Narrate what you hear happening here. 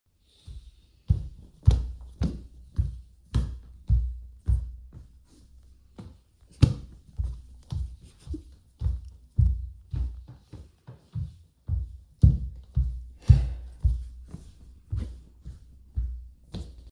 I walk across the bedroom producing regular footsteps on the floor. The footsteps continue for several seconds as I move through the room.